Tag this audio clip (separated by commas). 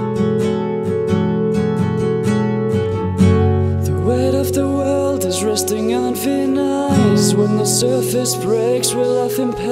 Music